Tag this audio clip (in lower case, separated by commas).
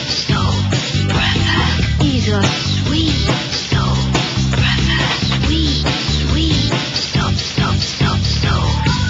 music